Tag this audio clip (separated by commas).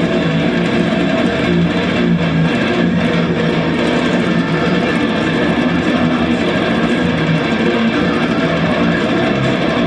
Plucked string instrument, Musical instrument, Music, Guitar